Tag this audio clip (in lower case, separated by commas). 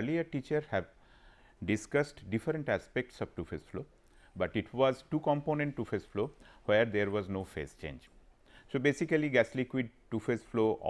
speech